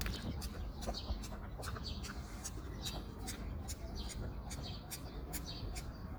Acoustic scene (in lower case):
park